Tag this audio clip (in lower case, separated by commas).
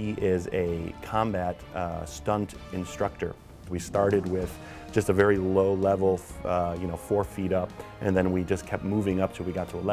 music, speech